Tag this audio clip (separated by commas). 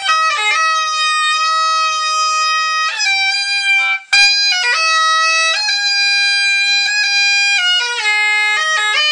playing bagpipes